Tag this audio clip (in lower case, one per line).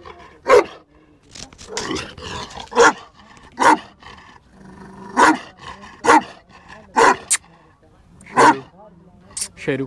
pets
animal
speech
dog